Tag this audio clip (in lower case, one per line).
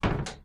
domestic sounds
slam
door